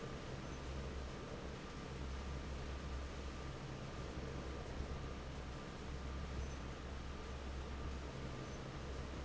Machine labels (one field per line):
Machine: fan